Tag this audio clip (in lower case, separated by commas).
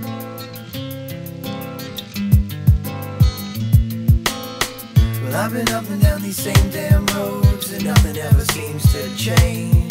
music, rhythm and blues